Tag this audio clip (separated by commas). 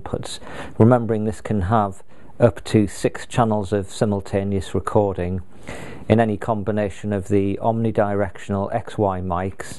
Speech